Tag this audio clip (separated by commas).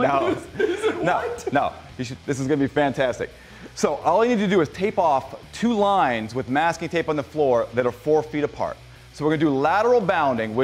Speech